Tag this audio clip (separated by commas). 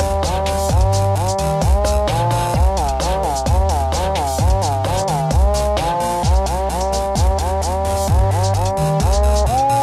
Music